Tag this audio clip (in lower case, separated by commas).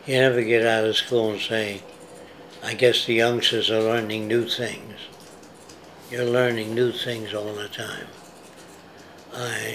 speech